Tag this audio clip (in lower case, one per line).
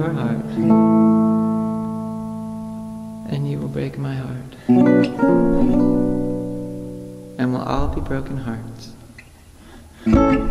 speech
music